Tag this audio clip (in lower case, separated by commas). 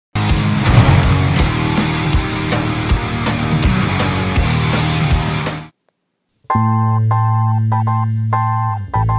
synthesizer